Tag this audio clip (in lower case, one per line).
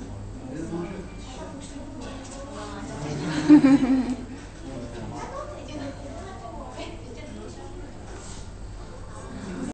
speech